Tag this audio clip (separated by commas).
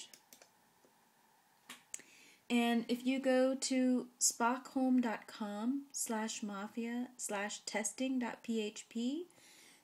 Speech